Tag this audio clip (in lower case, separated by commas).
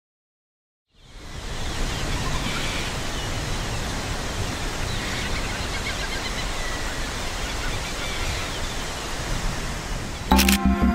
wind